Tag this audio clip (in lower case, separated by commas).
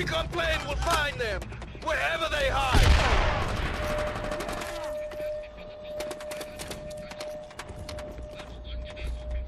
machine gun, fusillade, speech